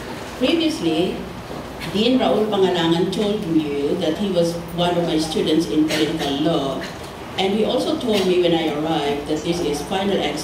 A woman makes a speech